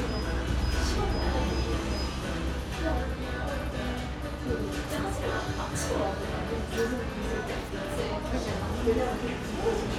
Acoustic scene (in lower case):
cafe